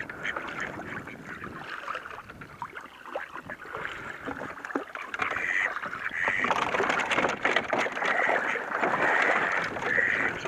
Water splashing with rustling and ducks quacking